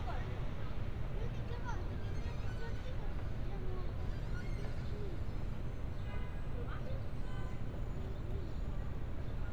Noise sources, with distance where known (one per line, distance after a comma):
car horn, far
person or small group talking, far